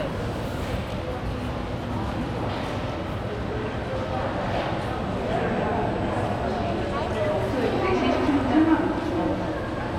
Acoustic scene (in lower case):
crowded indoor space